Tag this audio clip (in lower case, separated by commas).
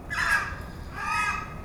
bird, animal, wild animals